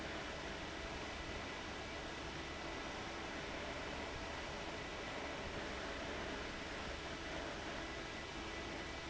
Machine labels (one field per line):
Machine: fan